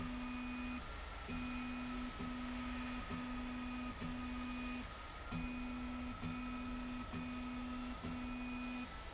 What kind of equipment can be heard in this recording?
slide rail